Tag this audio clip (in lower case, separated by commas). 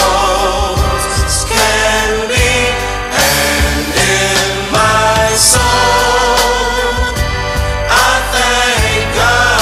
jingle (music)